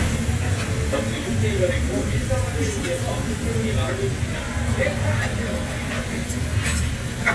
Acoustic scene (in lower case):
restaurant